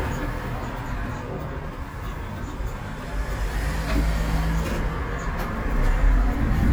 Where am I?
on a bus